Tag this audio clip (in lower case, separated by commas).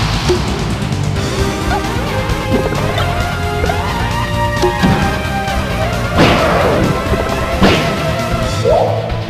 music